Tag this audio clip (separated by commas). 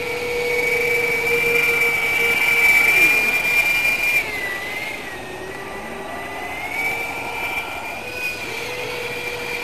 Motorboat, Speech